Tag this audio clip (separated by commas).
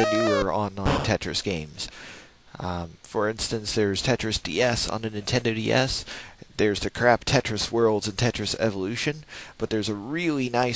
Speech